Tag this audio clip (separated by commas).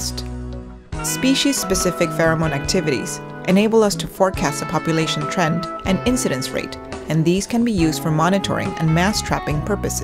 Music, Speech